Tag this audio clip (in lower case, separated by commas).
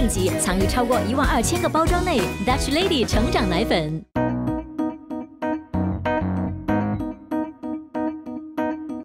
music, speech